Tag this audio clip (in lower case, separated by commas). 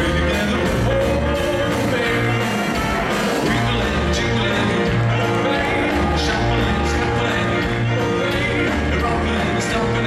music